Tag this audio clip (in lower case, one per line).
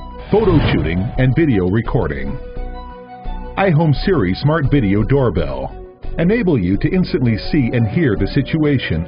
music
speech